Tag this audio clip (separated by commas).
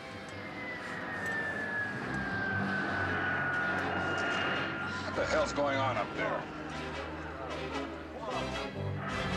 airplane